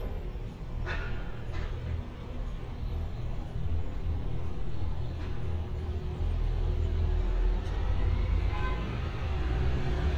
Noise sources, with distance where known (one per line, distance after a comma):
engine of unclear size, near
unidentified alert signal, near